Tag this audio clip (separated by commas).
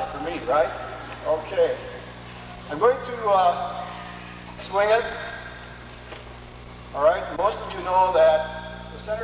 Speech